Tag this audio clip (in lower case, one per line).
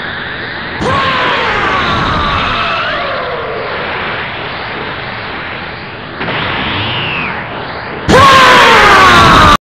sound effect